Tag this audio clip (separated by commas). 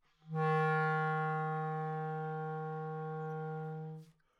Musical instrument, Music, woodwind instrument